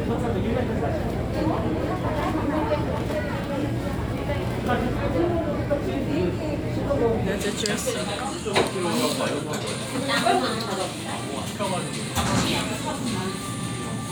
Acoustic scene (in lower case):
crowded indoor space